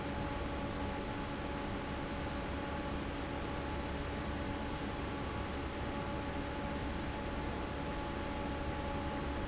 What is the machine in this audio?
fan